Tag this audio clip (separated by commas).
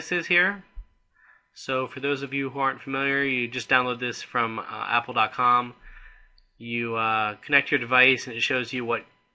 Speech